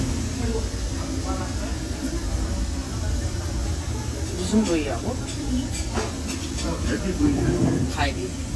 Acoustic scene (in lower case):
crowded indoor space